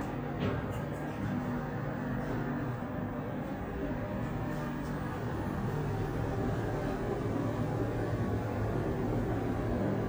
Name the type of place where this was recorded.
elevator